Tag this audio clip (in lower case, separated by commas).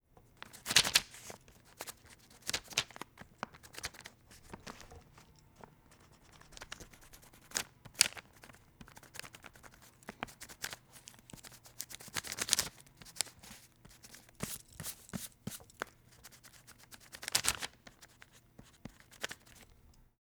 domestic sounds, writing